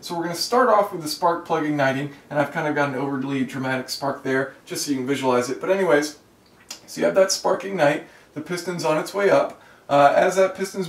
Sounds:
Speech

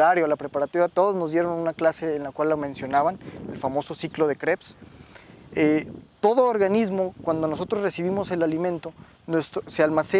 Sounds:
cattle mooing

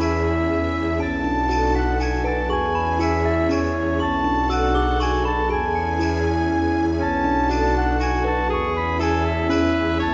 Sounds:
Soundtrack music, Music

